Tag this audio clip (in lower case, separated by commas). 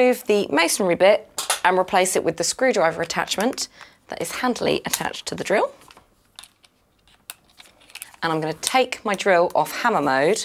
speech